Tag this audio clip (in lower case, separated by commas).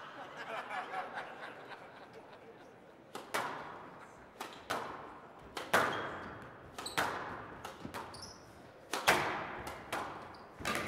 playing squash